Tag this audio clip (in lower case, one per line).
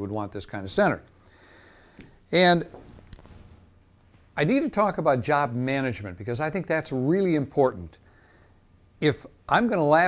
speech